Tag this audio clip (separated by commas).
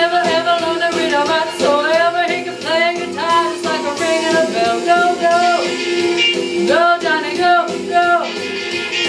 Female singing, Music